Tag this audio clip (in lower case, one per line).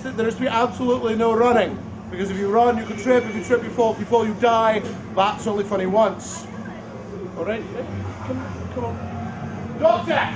speech